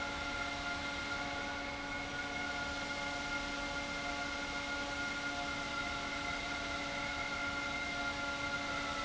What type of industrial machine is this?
fan